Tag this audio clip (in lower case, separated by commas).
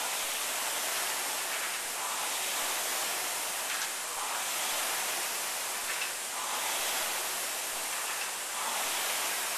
pink noise